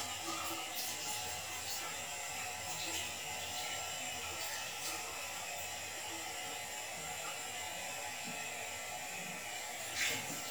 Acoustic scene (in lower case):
restroom